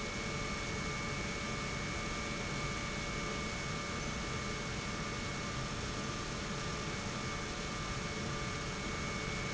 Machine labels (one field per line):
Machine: pump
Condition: normal